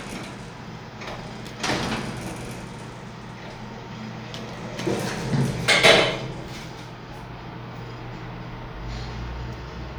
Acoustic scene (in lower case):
elevator